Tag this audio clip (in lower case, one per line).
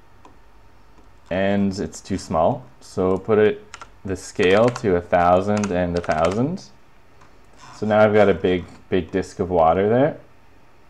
speech